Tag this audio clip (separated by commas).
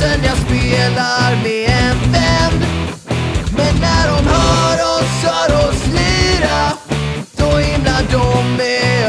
Punk rock, Music